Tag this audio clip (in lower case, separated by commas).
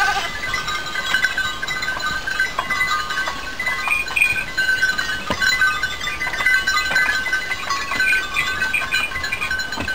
goat, livestock, sheep, animal